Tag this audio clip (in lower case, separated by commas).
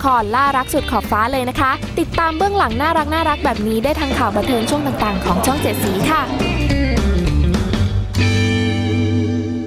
speech, music, slide guitar